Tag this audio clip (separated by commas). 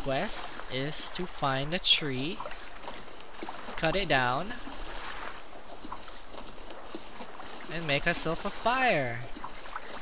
Speech